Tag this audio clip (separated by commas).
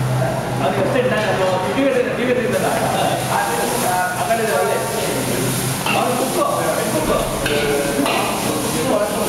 Speech